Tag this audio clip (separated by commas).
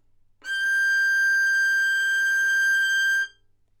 Music, Bowed string instrument, Musical instrument